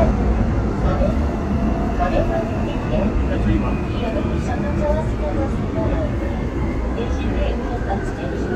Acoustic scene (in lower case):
subway train